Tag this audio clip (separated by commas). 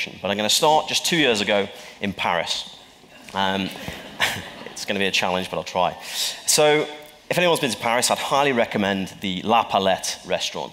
Speech